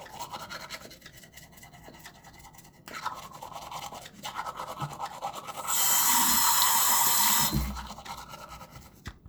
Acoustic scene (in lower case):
restroom